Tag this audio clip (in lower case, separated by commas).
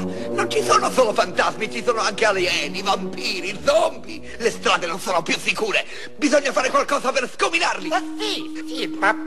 speech, music